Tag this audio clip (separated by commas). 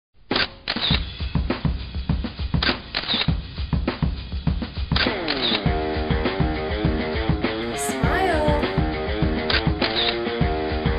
Music, Speech